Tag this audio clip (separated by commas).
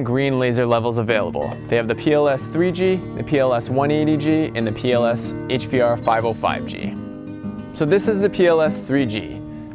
Music, Speech